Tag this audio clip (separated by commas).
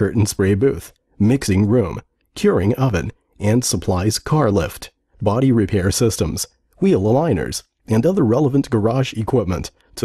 Speech